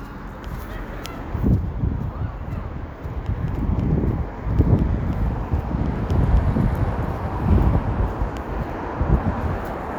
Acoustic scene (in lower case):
street